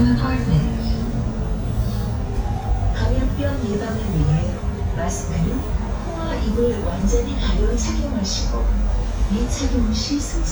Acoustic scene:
bus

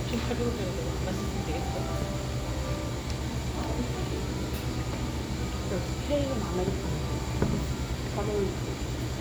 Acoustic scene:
cafe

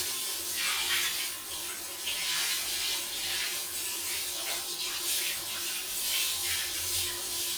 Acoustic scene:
restroom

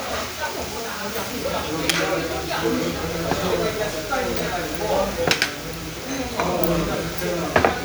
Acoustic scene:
restaurant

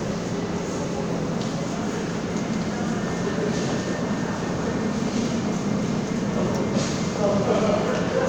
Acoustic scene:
subway station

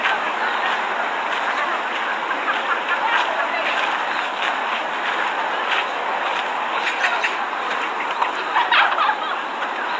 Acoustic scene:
park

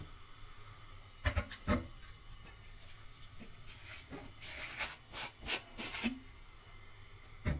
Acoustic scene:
kitchen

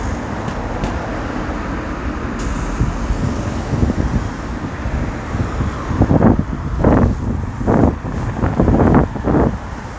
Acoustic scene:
street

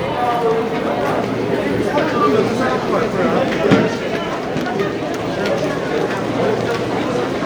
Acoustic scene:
subway station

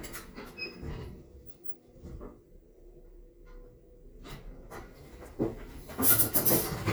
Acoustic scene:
elevator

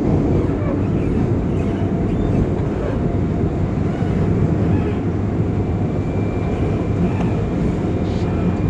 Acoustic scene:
subway train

